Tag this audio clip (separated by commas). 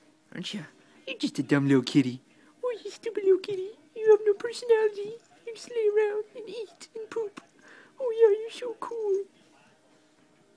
Speech